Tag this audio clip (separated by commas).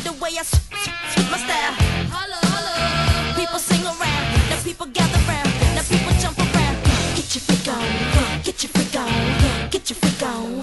Music